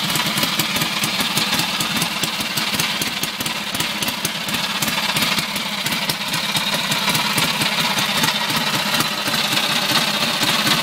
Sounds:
Vehicle, Idling, Engine, Medium engine (mid frequency)

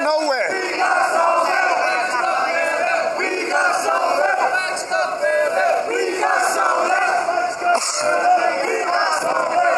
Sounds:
outside, urban or man-made, Speech, Crowd

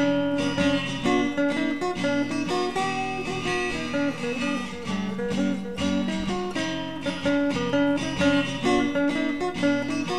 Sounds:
Strum, Acoustic guitar, Musical instrument, Guitar, Music, Plucked string instrument

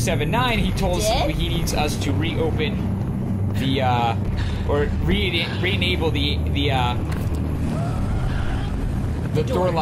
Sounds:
Speech, inside a small room

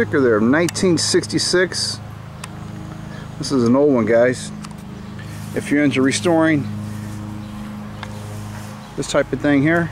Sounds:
Speech

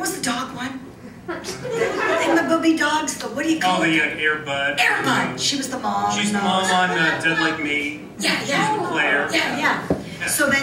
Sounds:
chortle, woman speaking, Speech

